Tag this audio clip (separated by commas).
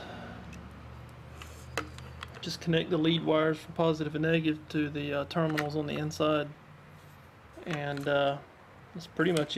Speech